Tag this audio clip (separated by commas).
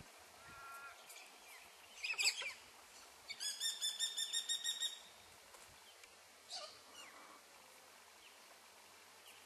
tweet, Bird vocalization, Bird, tweeting